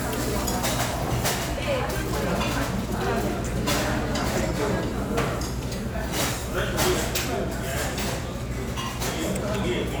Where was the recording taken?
in a restaurant